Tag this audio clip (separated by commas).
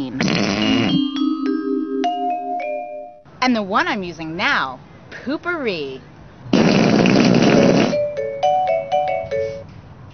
Mallet percussion, Marimba, Glockenspiel